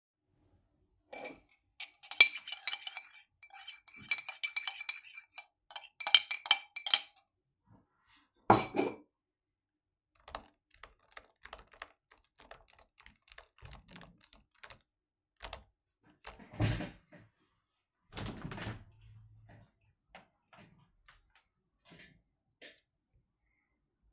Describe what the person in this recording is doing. I sat at my desk, when i steared my coffee mug. Put it aside and started typing. I then opened my window, while my chair made noises